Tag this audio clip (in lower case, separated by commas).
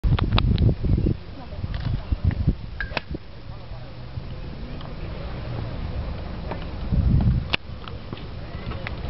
speech